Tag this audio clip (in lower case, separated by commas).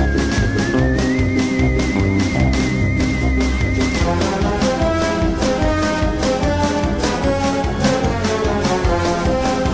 music